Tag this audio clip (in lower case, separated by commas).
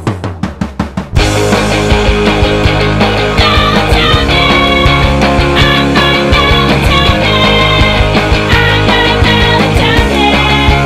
music